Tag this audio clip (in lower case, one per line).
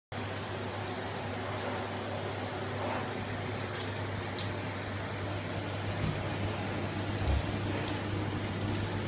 bathroom ventilation fan running